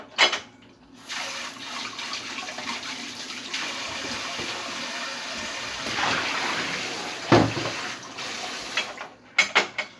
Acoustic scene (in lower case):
kitchen